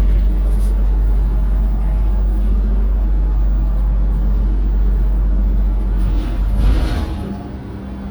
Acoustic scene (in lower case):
bus